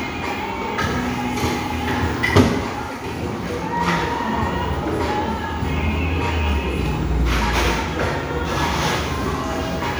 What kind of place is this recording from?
crowded indoor space